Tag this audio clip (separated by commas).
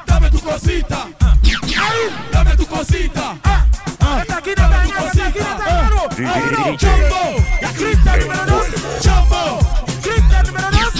Music